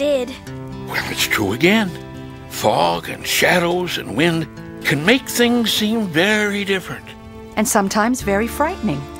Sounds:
Speech, Music

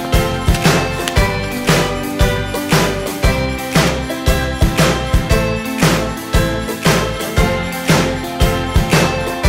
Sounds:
Music

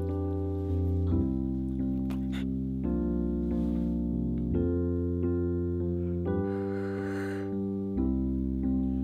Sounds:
Music

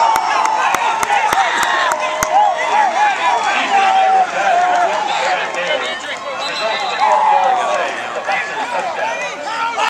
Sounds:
Applause, Speech, Clapping

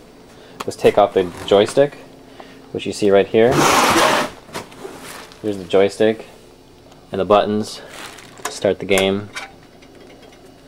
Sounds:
Speech

